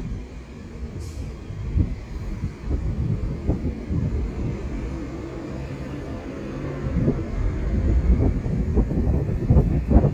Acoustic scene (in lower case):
street